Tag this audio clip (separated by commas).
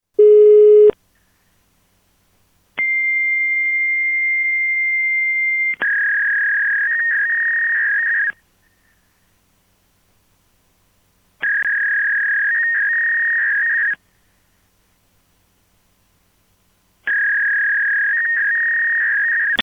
Alarm, Telephone